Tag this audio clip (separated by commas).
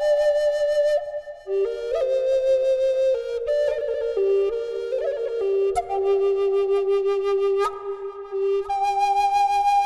playing flute, New-age music, Flute, Music